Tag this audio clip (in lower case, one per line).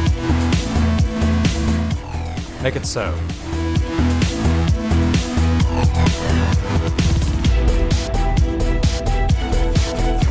speech
music